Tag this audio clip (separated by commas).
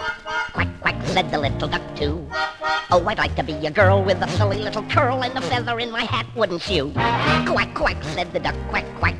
Music, Quack